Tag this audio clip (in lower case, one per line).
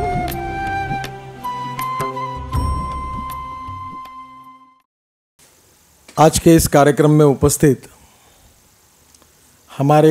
man speaking
speech
music